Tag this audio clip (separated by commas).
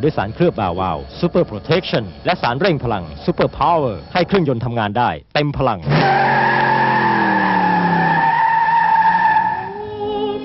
Speech, Car, Motor vehicle (road)